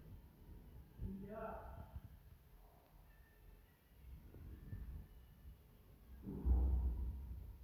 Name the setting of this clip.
elevator